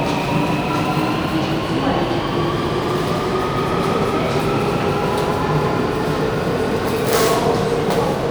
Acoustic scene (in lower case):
subway station